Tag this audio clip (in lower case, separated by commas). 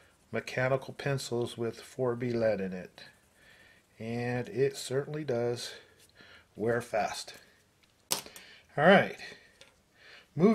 speech, inside a small room